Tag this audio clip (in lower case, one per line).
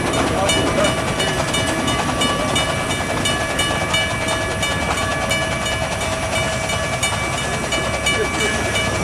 speech